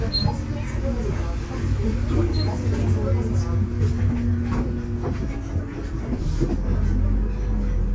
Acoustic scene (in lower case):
bus